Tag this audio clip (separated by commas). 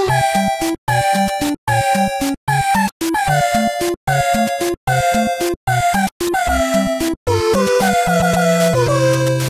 Music